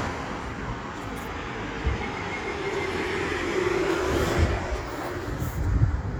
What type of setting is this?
street